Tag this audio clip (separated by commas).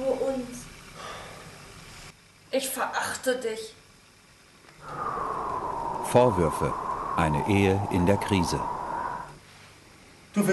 Speech